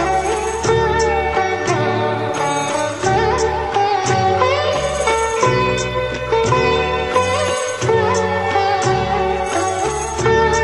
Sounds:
playing sitar

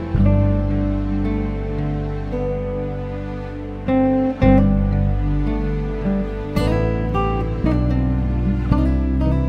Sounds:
Music

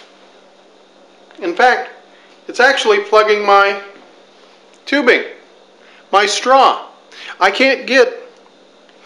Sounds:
Speech

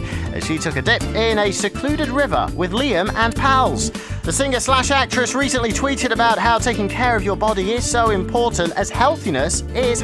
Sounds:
Music, Speech

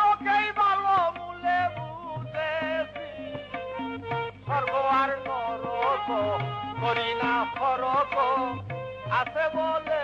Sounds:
Male singing, Music

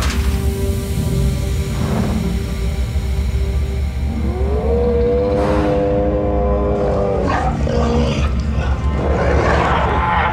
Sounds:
dinosaurs bellowing

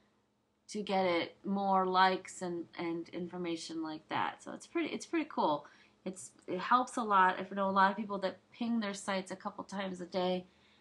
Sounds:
Speech

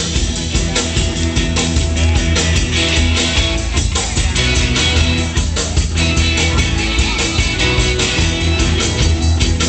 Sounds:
Speech, Rock and roll, Music

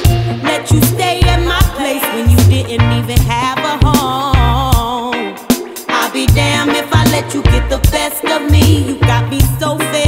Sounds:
Reggae, Music

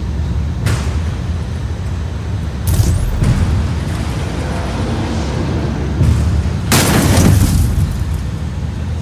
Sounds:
Boom

